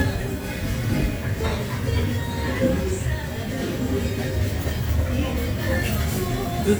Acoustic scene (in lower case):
restaurant